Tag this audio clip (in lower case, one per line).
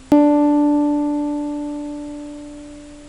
music
keyboard (musical)
piano
musical instrument